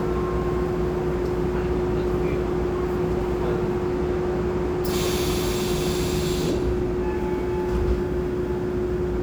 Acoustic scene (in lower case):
subway train